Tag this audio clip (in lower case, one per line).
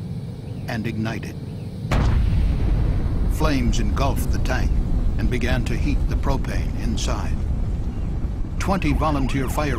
explosion
speech